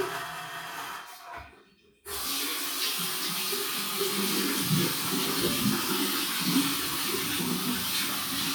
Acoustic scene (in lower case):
restroom